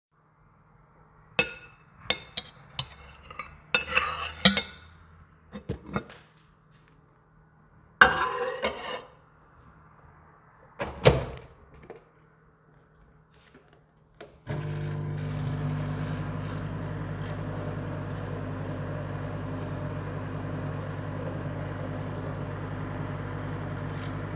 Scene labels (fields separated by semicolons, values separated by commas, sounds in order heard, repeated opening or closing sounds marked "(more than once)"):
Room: kitchen; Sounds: cutlery and dishes, microwave